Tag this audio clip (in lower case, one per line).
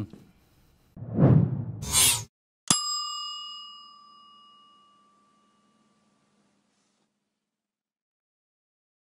silence